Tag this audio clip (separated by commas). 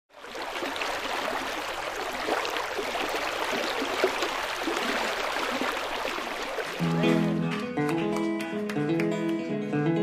Music